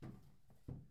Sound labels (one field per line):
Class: furniture moving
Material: wooden